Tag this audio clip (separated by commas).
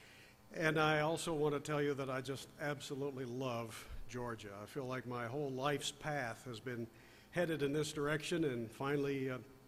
Speech